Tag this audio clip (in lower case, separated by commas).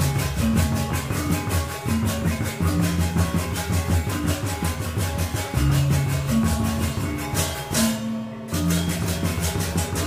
trance music, music